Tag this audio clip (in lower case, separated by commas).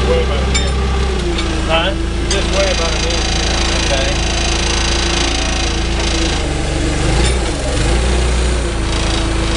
speech, vehicle